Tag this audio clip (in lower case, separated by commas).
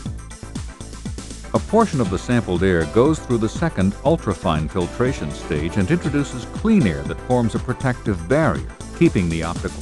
speech, music